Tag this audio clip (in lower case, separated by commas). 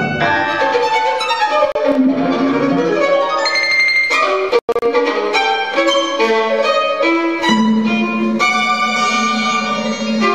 music, fiddle, musical instrument